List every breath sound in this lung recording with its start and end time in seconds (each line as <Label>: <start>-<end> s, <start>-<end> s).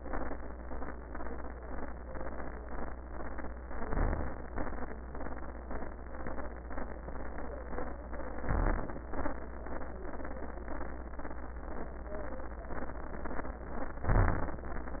Inhalation: 3.68-4.46 s, 8.48-9.02 s, 14.11-14.60 s
Exhalation: 4.56-4.95 s, 9.13-9.38 s
Crackles: 3.66-4.46 s, 8.48-9.02 s, 14.11-14.60 s